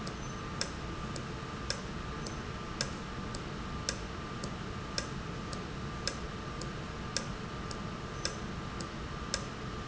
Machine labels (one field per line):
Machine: valve